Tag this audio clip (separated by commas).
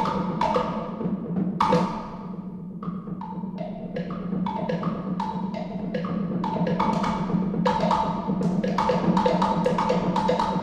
Percussion, Music